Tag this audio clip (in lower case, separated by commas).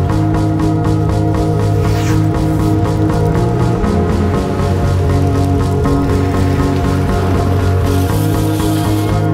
vehicle, music, bicycle